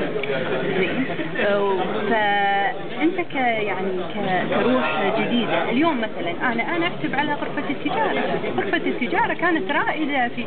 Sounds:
inside a large room or hall, Speech

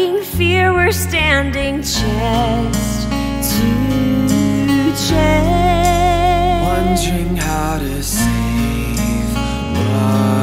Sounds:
Soundtrack music, Sad music, Music

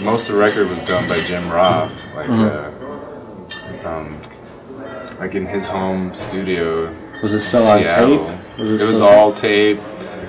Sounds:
Speech

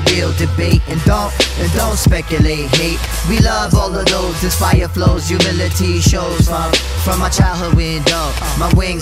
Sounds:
Music

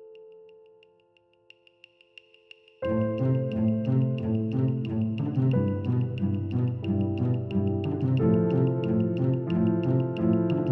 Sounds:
Independent music, Music

